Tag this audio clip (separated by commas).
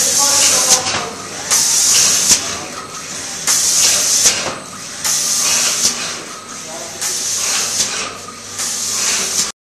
Speech, inside a large room or hall